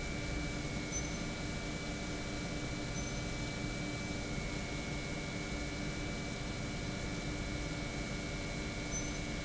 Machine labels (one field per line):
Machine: pump